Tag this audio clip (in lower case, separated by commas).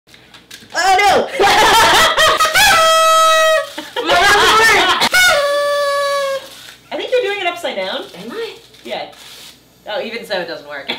speech, inside a small room